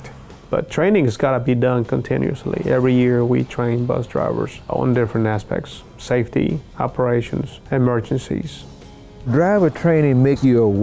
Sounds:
music, speech

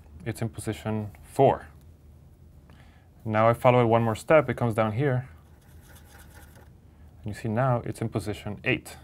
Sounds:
speech

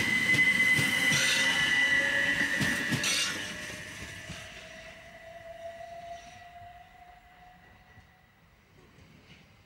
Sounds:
train, outside, urban or man-made, vehicle

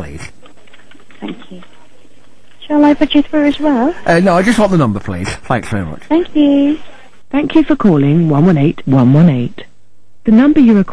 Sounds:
female speech, speech, man speaking, conversation

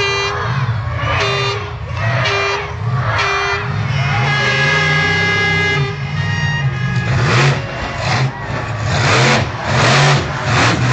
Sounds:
vehicle, speech, truck

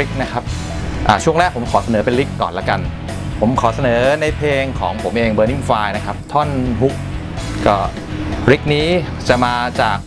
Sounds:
music, speech

